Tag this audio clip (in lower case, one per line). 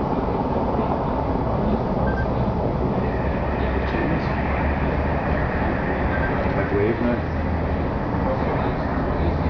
speech